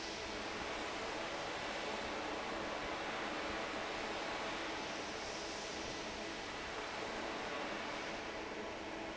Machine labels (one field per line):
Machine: fan